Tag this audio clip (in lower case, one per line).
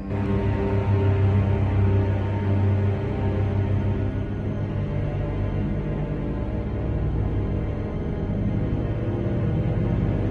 music